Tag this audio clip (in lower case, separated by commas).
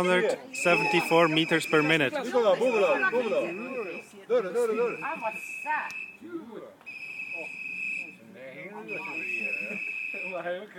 outside, rural or natural, speech